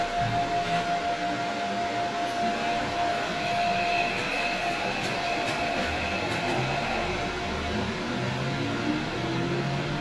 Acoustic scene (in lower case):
subway train